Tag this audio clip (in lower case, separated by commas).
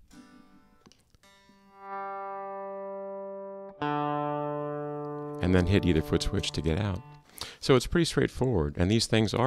inside a small room, synthesizer, effects unit, electronic tuner, music, speech, guitar, musical instrument